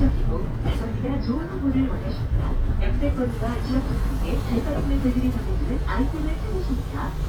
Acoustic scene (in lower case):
bus